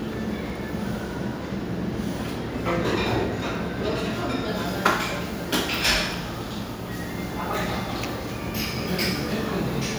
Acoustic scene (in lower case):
restaurant